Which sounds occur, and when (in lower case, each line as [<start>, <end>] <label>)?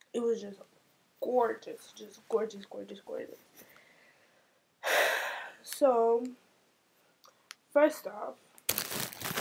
[0.00, 9.40] background noise
[0.13, 0.71] female speech
[1.16, 3.44] female speech
[3.65, 4.57] breathing
[4.81, 5.55] breathing
[5.61, 6.45] female speech
[6.21, 6.30] tick
[7.19, 7.28] tick
[7.48, 7.57] tick
[7.72, 8.37] female speech
[8.50, 8.59] tick
[8.66, 9.40] crinkling